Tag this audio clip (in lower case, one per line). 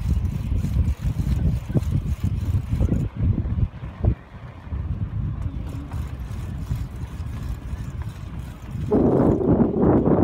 run
people running